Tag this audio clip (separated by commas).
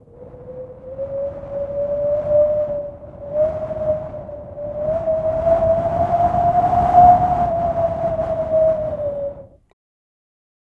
Wind